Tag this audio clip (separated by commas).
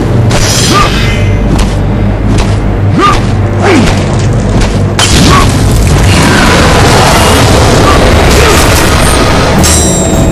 Boom, Music